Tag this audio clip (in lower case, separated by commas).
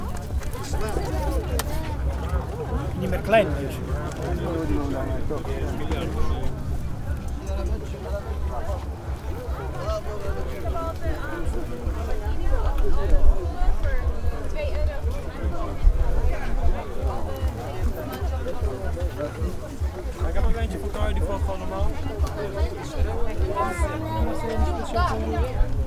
conversation, speech, human voice